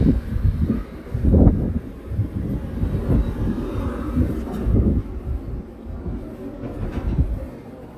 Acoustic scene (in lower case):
residential area